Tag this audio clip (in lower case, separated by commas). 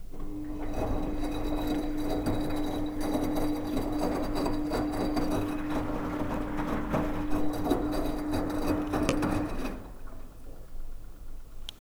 engine